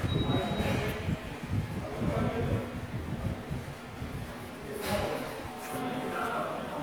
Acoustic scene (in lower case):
subway station